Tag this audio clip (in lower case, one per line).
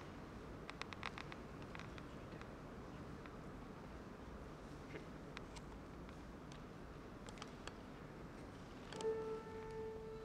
fiddle
music
musical instrument